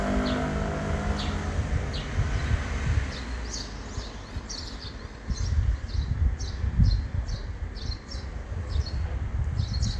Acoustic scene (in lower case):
residential area